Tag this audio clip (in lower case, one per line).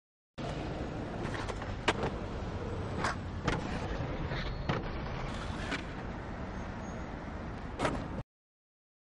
rustle